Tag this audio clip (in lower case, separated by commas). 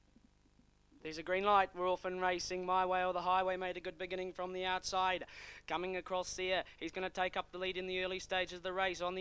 speech